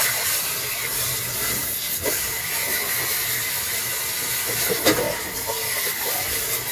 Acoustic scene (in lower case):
kitchen